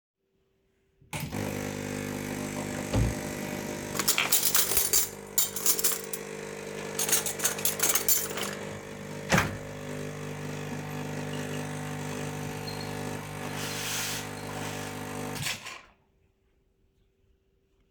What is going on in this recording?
i turn on the coffee machine, open a drawer, grab some cutlery, and close the drawer. then i release a bit of steam from the coffee machine and turn it the machine off.